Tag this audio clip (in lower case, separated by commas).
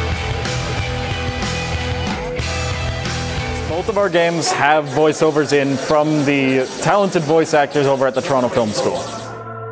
music, speech